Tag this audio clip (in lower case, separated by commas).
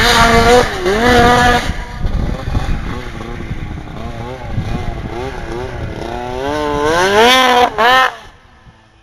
engine, medium engine (mid frequency), vehicle, vroom